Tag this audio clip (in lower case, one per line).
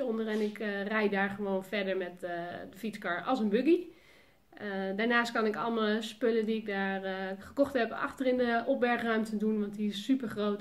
speech